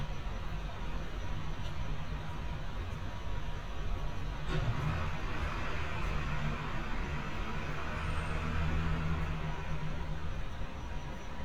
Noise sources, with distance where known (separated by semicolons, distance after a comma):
large-sounding engine, far